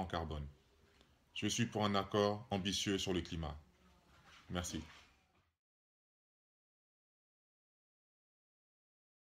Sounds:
Speech

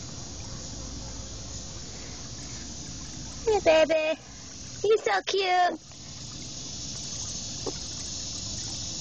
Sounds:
Speech

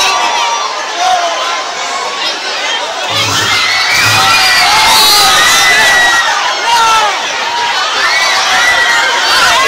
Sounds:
Speech

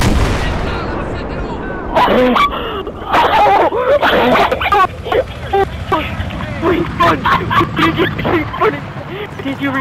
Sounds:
Speech

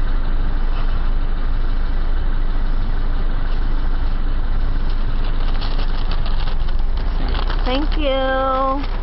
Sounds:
Speech, outside, urban or man-made

